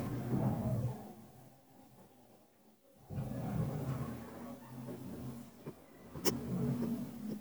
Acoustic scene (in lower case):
elevator